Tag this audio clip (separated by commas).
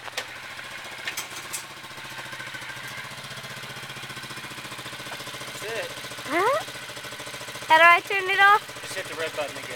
Speech, Vehicle